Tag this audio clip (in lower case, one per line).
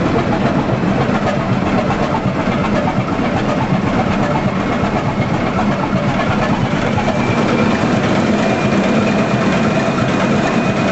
vehicle
heavy engine (low frequency)
vroom
engine